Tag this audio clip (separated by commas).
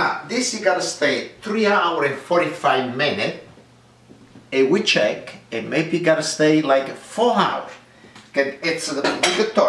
Speech, inside a small room